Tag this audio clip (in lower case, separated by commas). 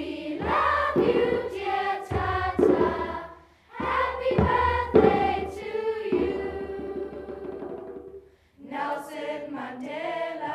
child singing, choir, music